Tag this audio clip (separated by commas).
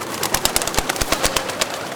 Wild animals, Animal, Bird